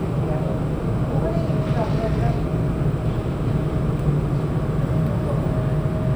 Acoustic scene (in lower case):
subway train